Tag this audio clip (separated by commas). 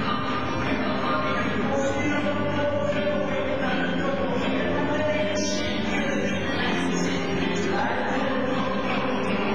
Music, Rock and roll